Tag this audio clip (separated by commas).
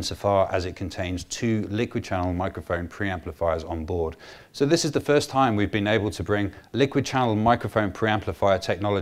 Speech